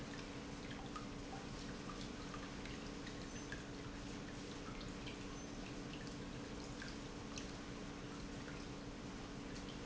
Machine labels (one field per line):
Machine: pump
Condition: normal